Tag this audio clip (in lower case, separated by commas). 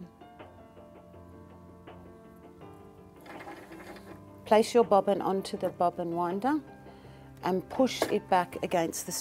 speech, music